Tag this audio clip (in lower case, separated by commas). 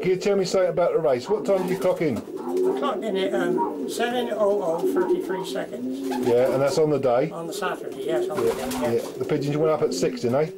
coo, bird, speech